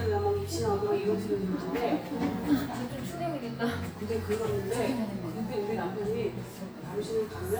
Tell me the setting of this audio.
cafe